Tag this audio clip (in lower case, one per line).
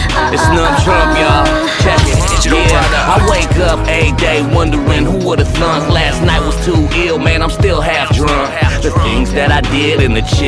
music